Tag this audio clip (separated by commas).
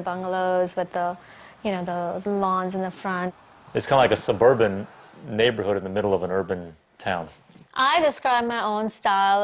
Speech